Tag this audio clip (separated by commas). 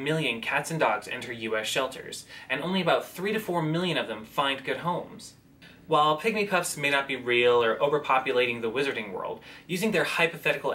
Speech